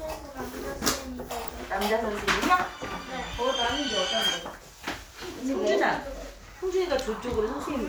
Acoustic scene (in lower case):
crowded indoor space